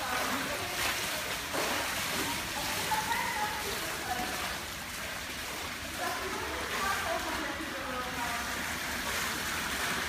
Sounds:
swimming

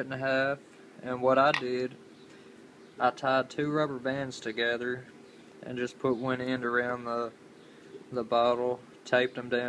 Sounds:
Speech

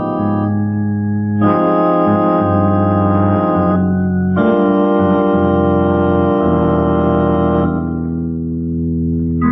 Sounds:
Hammond organ, Organ

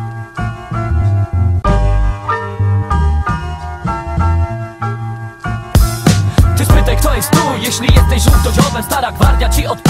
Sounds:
Music

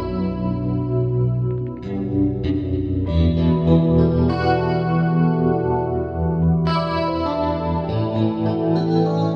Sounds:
Organ, Music

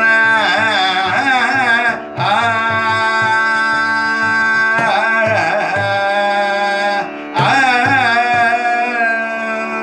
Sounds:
Tabla, Percussion, Drum

